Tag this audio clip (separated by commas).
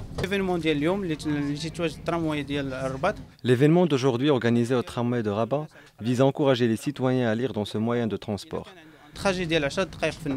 Speech